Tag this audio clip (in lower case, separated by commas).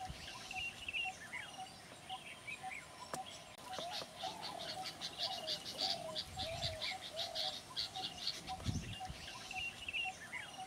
environmental noise